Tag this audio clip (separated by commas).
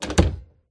Slam, Wood, Domestic sounds, Door